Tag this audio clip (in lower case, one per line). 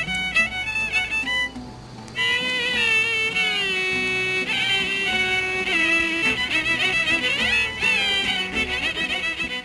music